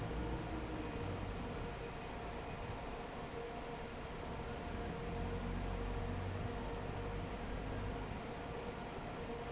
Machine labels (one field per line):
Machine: fan